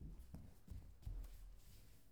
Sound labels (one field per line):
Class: footsteps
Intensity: high